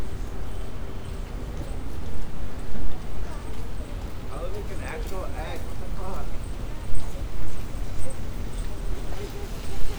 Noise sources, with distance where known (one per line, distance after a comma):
person or small group talking, near